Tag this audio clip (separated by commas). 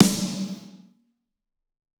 Percussion, Music, Snare drum, Musical instrument, Drum